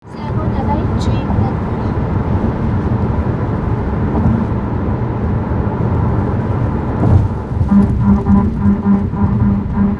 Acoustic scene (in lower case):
car